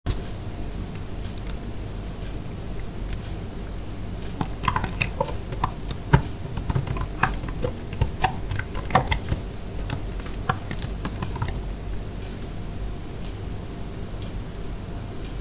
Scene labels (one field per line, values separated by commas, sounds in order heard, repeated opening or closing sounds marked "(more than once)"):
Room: kitchen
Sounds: keyboard typing